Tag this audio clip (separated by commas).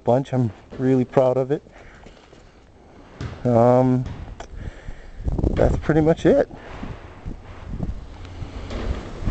Speech, footsteps